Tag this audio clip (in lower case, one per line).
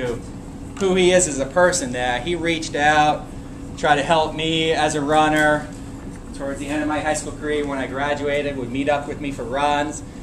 speech
inside a large room or hall